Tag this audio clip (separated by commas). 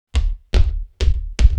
Walk